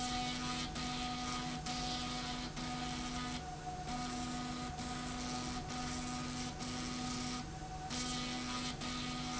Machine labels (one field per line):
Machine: slide rail